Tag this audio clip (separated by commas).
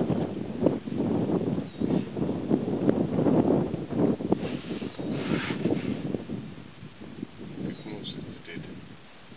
Speech